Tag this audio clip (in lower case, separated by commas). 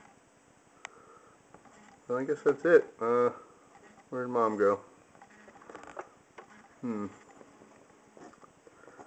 speech, bird